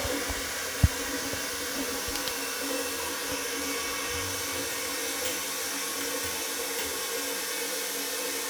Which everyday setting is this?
restroom